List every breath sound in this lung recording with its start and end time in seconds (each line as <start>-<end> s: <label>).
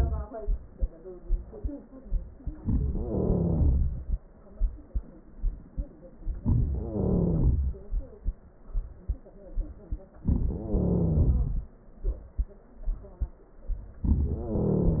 2.96-4.08 s: wheeze
6.86-7.77 s: wheeze
10.68-11.72 s: wheeze
14.06-15.00 s: wheeze